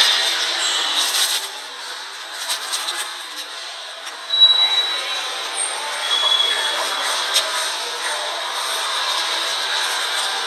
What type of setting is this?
subway station